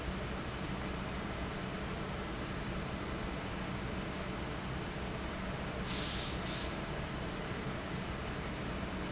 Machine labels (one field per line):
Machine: fan